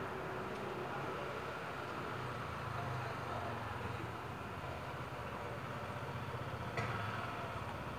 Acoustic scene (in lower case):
residential area